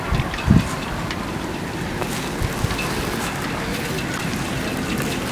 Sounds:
wind

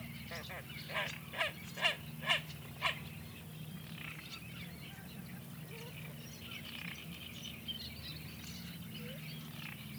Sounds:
animal
wild animals
bird

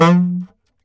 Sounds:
musical instrument
music
wind instrument

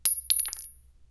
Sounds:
glass
chink

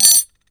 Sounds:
cutlery
domestic sounds

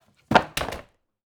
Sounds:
thud

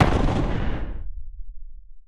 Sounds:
explosion

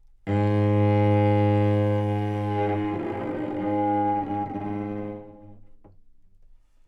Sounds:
bowed string instrument
music
musical instrument

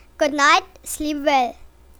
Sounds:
human voice

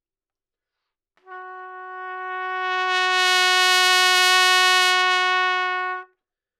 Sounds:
brass instrument
music
musical instrument
trumpet

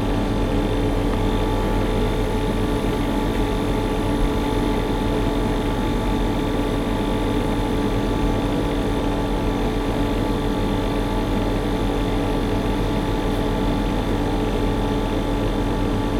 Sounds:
mechanisms

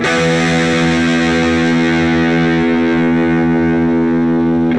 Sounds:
musical instrument
music
plucked string instrument
guitar
electric guitar

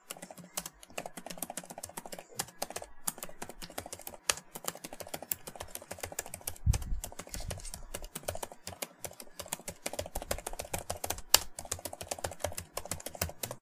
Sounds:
computer keyboard
domestic sounds
typing

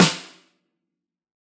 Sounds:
musical instrument
percussion
snare drum
music
drum

